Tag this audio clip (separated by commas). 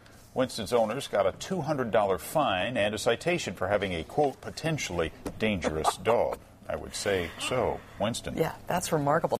Speech